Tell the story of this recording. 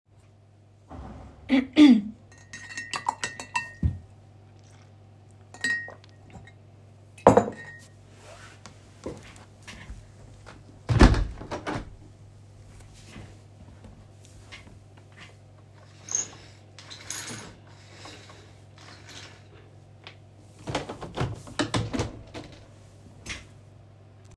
I cleared my throat, mixed the water in my ceramic cup with a straw, took a sip, and put the cup aside on my desk. Then i got up from my chair, took one step, closed the window, opened the blinds, opened the window, and sat down again.